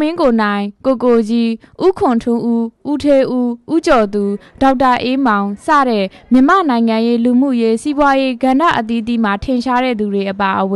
Women giving a speech